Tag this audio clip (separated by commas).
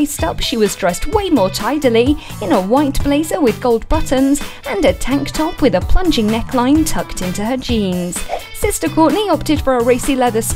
Music, Speech